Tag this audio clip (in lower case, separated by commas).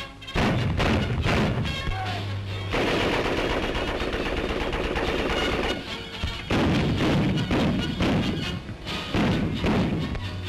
machine gun shooting